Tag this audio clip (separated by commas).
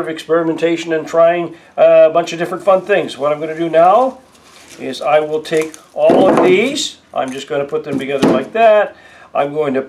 Speech